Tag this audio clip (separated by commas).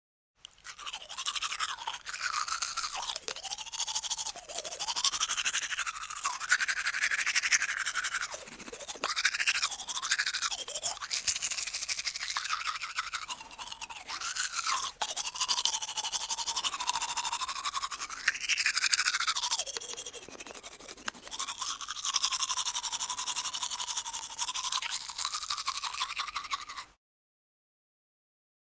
Domestic sounds